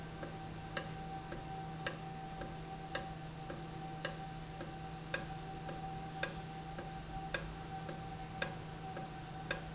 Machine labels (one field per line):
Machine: valve